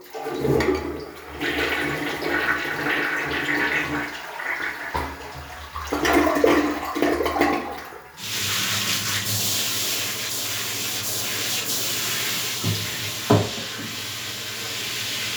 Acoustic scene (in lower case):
restroom